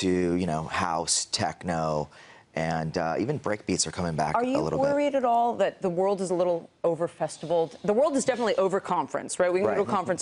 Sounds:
Speech

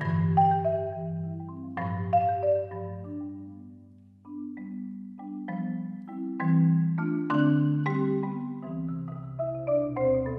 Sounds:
Glockenspiel, Marimba, Mallet percussion, playing marimba

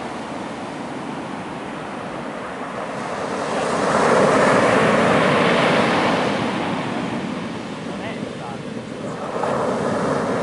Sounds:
surf, Speech, Ocean

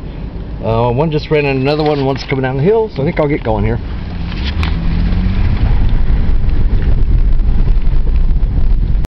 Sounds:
Vehicle, Car, Speech

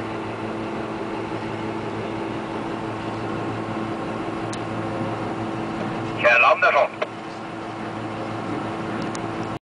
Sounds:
Speech

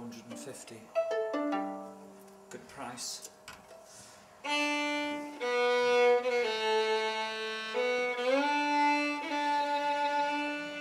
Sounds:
Speech, Musical instrument, Violin, Music

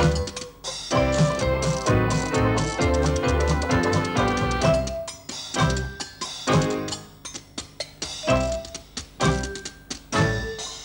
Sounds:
playing washboard

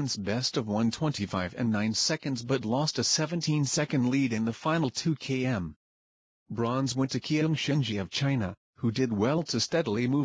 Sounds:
Speech

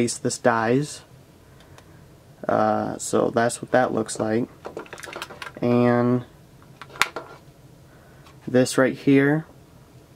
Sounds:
Speech, inside a small room

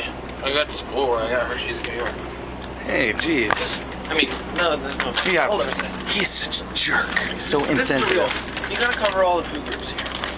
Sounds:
Speech

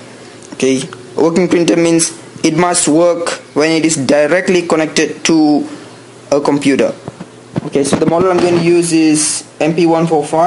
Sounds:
Speech

